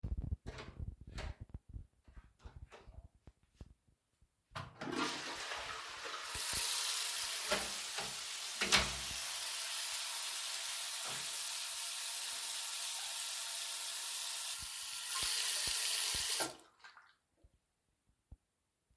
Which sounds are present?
door, toilet flushing, running water